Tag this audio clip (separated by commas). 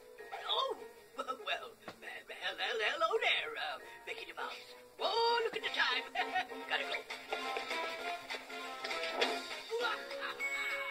Speech, Music